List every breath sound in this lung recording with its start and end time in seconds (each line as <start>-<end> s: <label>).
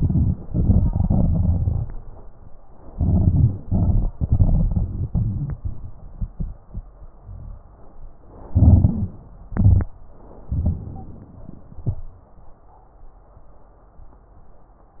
0.00-0.35 s: inhalation
0.41-1.90 s: exhalation
0.41-1.90 s: crackles
2.90-3.60 s: inhalation
3.61-6.61 s: exhalation
8.50-9.15 s: inhalation
8.87-9.15 s: wheeze
9.53-9.90 s: exhalation